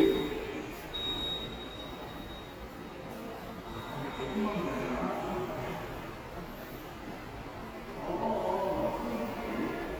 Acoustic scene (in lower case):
subway station